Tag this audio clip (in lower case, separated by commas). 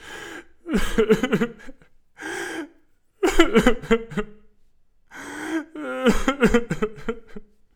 human voice, sobbing